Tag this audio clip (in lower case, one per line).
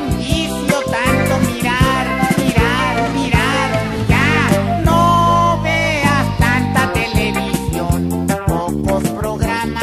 music
television